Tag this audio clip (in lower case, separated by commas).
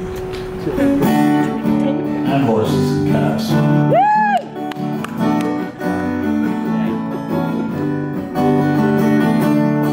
speech, music